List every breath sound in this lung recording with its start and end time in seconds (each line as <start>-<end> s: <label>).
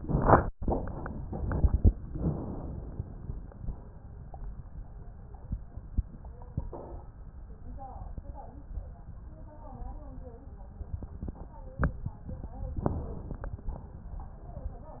2.11-3.34 s: inhalation
12.83-13.62 s: inhalation
13.60-14.09 s: exhalation